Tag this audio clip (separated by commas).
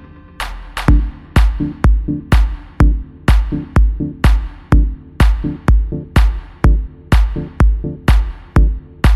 Music